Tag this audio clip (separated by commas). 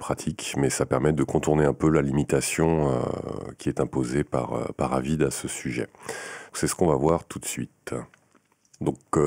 Speech